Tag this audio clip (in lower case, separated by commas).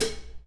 dishes, pots and pans, domestic sounds